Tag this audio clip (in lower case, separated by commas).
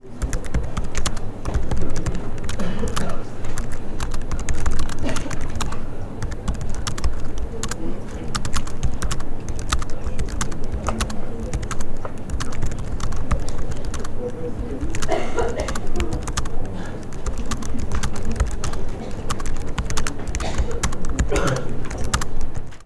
typing, computer keyboard, domestic sounds